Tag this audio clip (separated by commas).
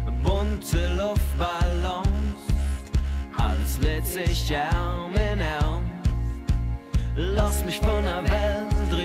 Music